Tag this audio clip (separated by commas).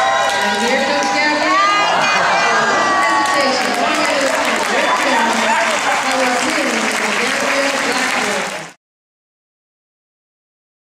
Cheering, Crowd